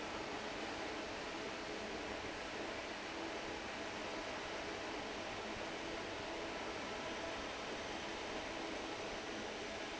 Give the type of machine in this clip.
fan